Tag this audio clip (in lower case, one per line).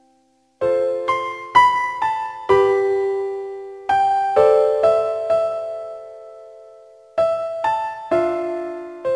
music
tender music